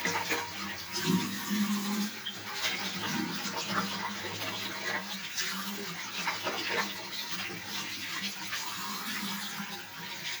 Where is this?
in a restroom